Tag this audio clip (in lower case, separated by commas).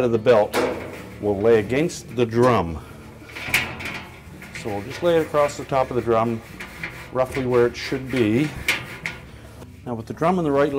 speech, music